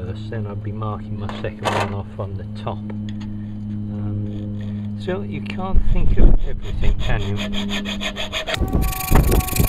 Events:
0.0s-2.8s: man speaking
0.0s-9.6s: mechanisms
1.2s-1.9s: generic impact sounds
2.8s-2.9s: tick
3.0s-3.8s: generic impact sounds
3.9s-4.1s: man speaking
4.2s-5.2s: filing (rasp)
4.9s-7.5s: man speaking
5.5s-7.5s: wind noise (microphone)
6.3s-9.6s: filing (rasp)
8.5s-9.6s: wind noise (microphone)
8.5s-9.6s: car horn

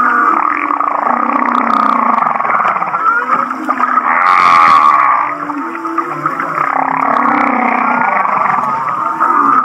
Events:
0.0s-9.6s: whale vocalization
3.3s-4.0s: water
5.3s-6.6s: water

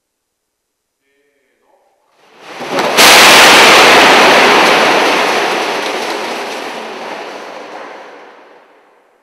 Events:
0.0s-9.2s: mains hum
1.0s-2.0s: male speech
2.1s-9.2s: crockery breaking and smashing

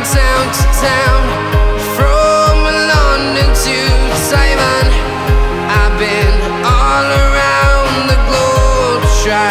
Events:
0.0s-1.1s: male singing
0.0s-9.5s: music
1.7s-4.8s: male singing
5.7s-6.3s: male singing
6.5s-9.5s: male singing

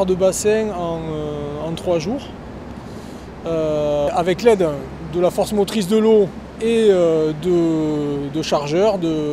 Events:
0.0s-3.1s: vehicle
0.0s-9.3s: water
0.0s-9.3s: wind
0.1s-2.3s: man speaking
2.8s-3.3s: breathing
3.4s-4.8s: man speaking
5.1s-6.3s: man speaking
6.6s-7.3s: man speaking
7.4s-9.3s: man speaking

